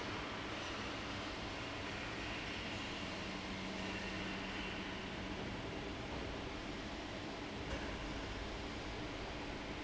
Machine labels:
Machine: fan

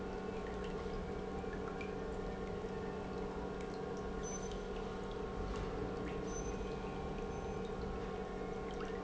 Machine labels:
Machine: pump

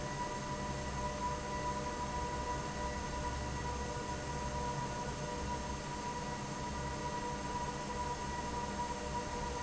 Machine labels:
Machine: fan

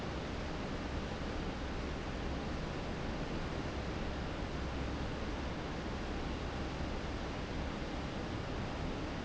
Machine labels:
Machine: fan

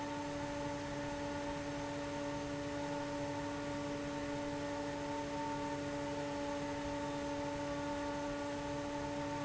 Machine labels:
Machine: fan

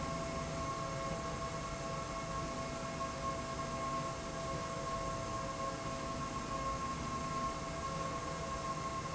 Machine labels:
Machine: slide rail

